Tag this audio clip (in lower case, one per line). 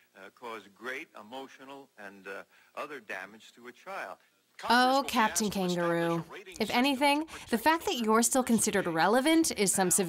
speech